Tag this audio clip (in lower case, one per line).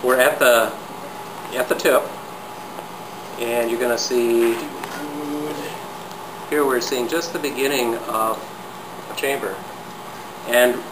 speech